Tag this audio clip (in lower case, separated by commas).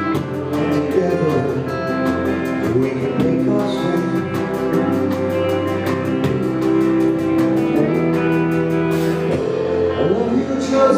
music, singing